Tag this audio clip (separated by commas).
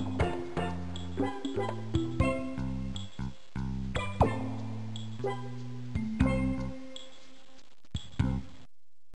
Music, Soundtrack music